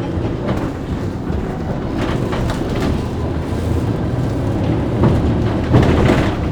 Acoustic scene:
bus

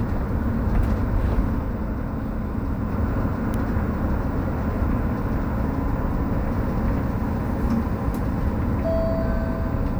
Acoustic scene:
bus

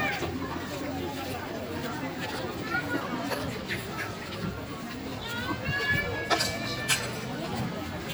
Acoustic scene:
park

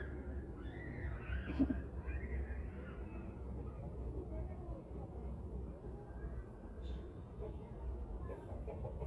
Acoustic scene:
residential area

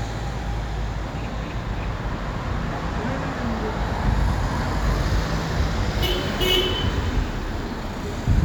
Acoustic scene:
street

